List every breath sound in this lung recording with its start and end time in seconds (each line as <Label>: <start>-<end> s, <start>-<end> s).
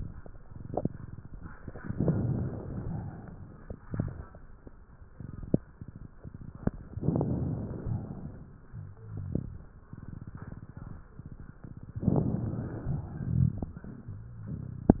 Inhalation: 1.92-2.96 s, 6.95-7.91 s, 12.03-13.00 s
Exhalation: 3.00-3.89 s, 7.95-8.84 s, 13.00-13.89 s
Crackles: 1.94-2.90 s, 6.95-7.91 s, 12.03-13.00 s